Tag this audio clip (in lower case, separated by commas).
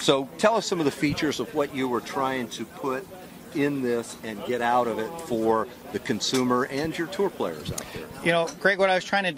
speech